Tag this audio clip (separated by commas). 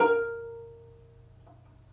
Musical instrument, Music, Plucked string instrument